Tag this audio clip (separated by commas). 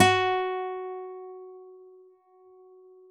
Music, Guitar, Acoustic guitar, Musical instrument, Plucked string instrument